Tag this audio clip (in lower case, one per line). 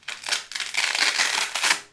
domestic sounds